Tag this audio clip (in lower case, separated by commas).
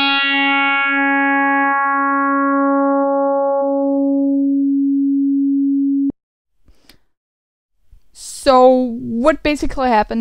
speech, synthesizer